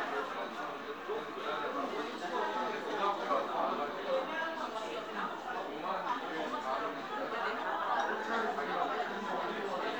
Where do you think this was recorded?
in a crowded indoor space